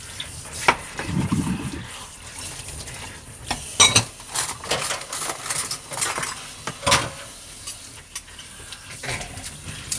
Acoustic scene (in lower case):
kitchen